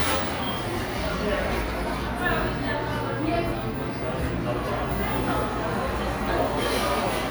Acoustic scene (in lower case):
cafe